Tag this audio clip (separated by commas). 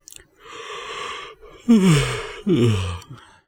Human voice